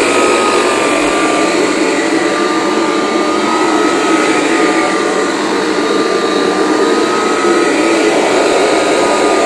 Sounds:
vacuum cleaner

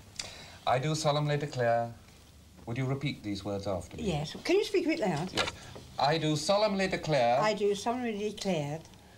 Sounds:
speech

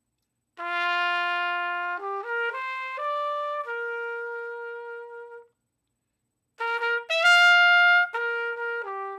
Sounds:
music, musical instrument, playing trumpet, trumpet

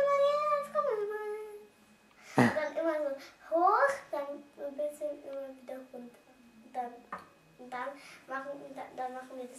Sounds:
speech

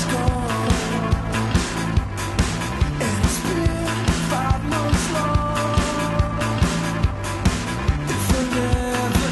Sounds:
music, blues

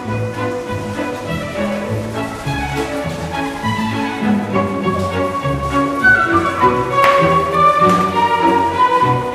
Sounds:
inside a large room or hall, music

